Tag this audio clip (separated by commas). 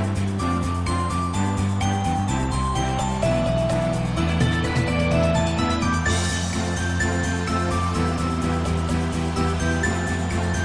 Music